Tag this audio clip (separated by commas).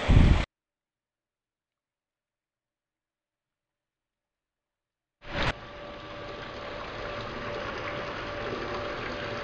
Silence